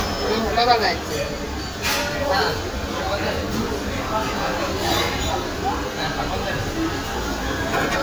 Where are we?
in a restaurant